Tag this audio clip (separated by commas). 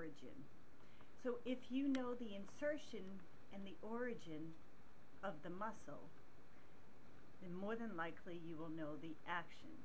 Speech